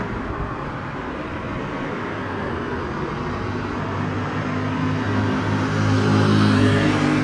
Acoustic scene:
street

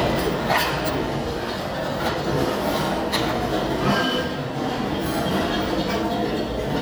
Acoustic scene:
restaurant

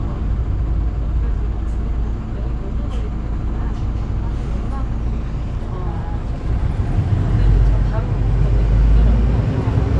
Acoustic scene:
bus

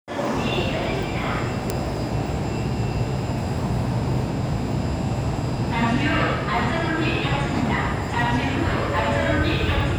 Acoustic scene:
subway station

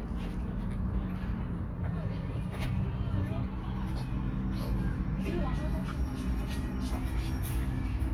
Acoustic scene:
park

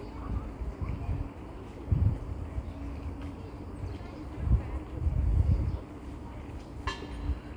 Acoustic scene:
residential area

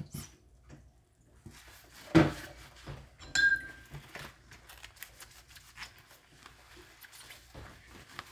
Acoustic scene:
kitchen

